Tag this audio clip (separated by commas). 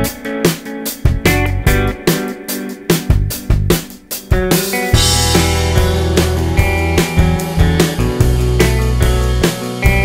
Music